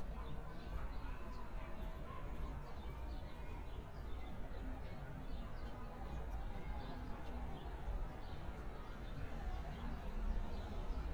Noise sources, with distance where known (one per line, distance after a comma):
unidentified human voice, far